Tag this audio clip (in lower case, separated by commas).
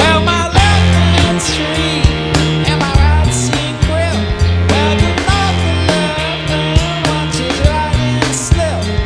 music